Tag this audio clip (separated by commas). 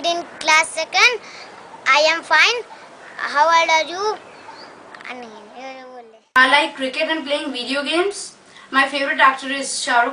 Speech